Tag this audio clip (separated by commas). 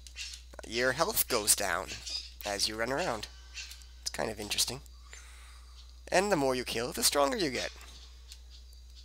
Speech